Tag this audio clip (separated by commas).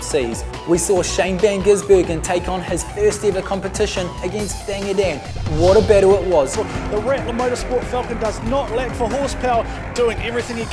Speech, Music